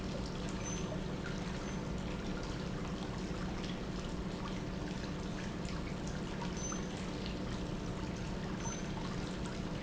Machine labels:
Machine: pump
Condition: normal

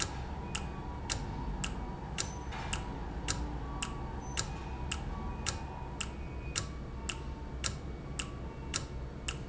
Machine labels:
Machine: valve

